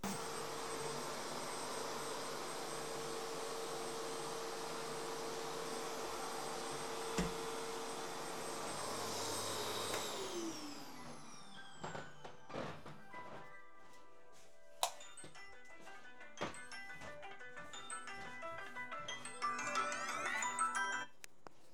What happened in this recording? While vacuum cleaning my phone was ringing. So I left, turned the light on and entered the room my phone was in.